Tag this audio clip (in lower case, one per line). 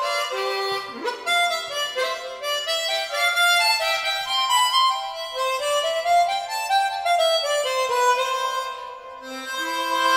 playing harmonica